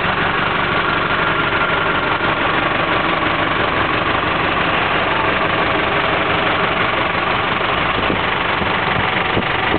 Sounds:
Motor vehicle (road), Vibration, Vehicle, Engine

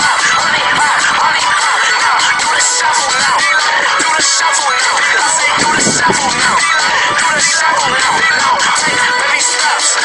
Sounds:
Music

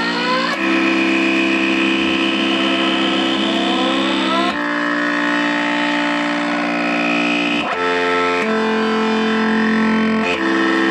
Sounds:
Guitar, Musical instrument, Music

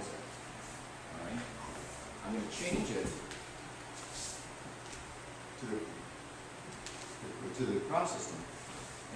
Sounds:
Speech, footsteps

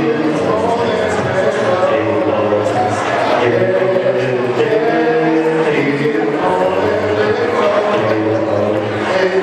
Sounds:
Male singing

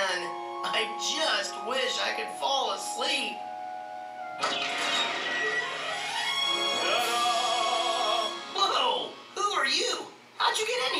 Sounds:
Speech, Music

